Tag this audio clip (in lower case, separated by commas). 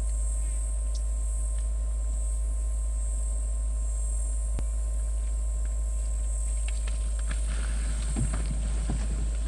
animal